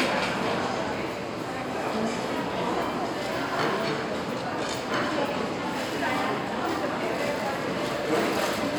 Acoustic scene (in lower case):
restaurant